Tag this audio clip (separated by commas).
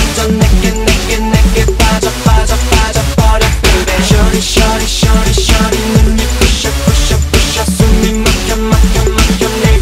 Music of Asia, Music, Singing